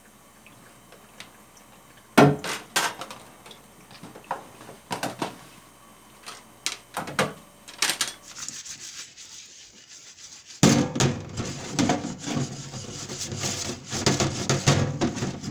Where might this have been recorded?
in a kitchen